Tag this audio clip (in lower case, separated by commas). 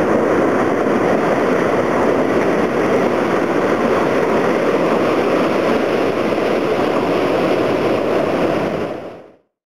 water vehicle, vehicle